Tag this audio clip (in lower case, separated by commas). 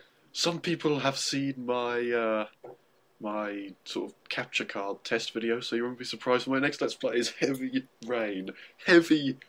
speech